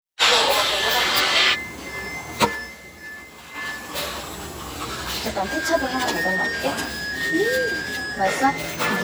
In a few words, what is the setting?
restaurant